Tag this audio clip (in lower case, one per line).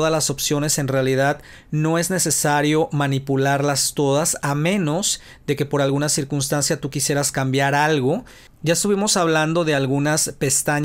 speech